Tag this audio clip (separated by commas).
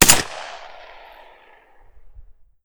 Gunshot, Explosion